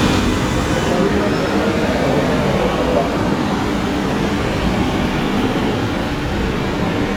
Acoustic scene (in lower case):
subway station